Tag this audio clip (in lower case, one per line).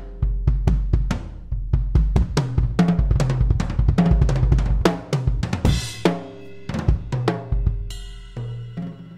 percussion
snare drum
drum kit
bass drum
rimshot
drum